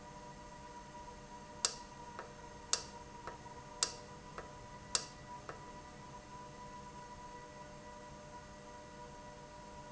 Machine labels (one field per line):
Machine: valve